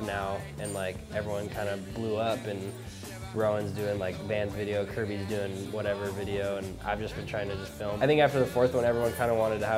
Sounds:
speech
music

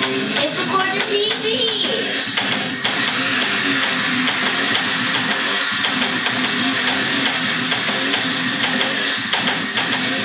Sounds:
strum
speech
musical instrument
plucked string instrument
guitar
music

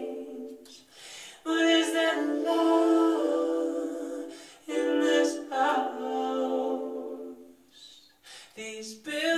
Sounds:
male singing
music

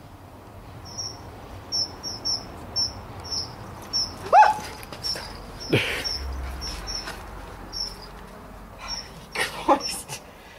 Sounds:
speech

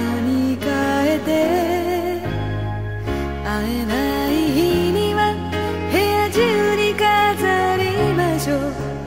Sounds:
music

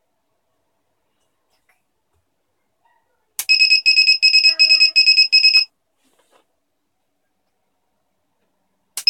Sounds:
speech

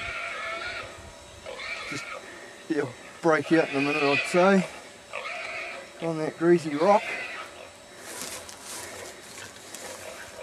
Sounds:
oink
speech

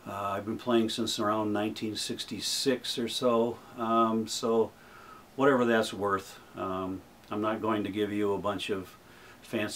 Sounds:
speech

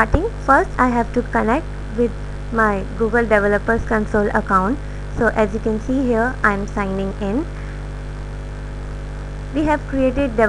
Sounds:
speech

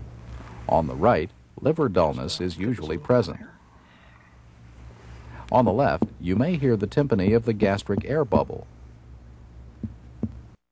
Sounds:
speech

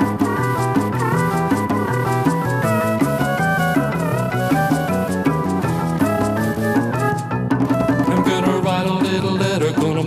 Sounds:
musical instrument
music
roll

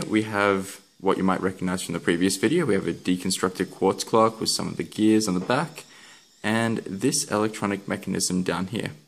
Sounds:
speech

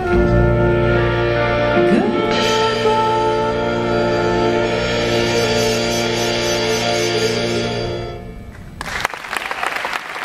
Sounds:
music
applause
singing

